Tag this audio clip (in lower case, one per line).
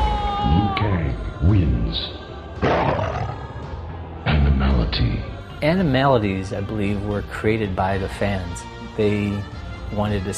music
speech